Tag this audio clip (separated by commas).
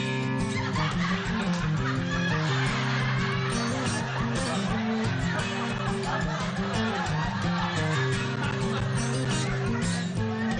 Music, Speech